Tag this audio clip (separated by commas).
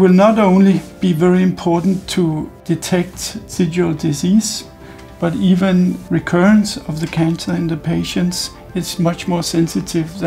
Speech, Music, Spray